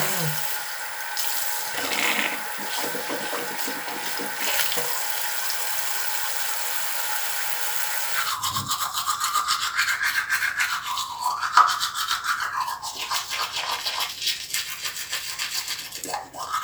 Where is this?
in a restroom